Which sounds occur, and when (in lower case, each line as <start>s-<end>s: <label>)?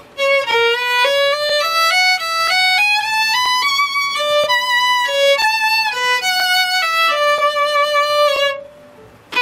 0.0s-9.4s: mechanisms
0.1s-8.9s: music